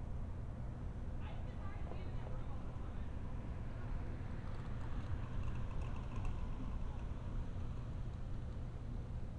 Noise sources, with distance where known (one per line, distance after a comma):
engine of unclear size, far
person or small group talking, far